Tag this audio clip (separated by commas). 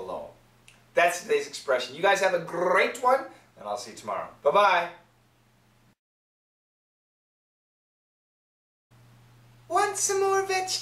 Speech